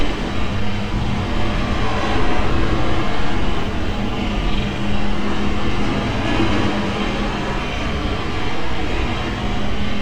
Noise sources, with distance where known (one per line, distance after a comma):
large-sounding engine, near